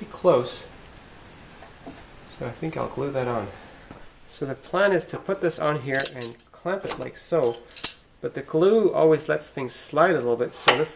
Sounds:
Speech

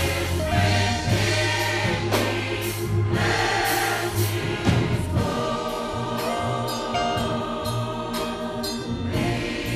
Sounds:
Music, Choir

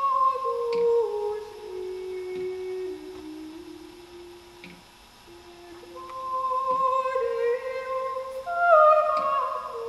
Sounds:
Music

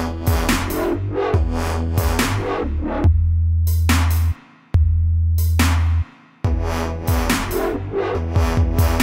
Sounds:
Dubstep, Electronic music, Music, Drum machine

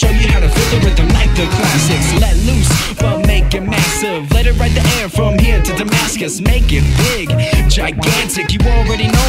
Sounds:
Music

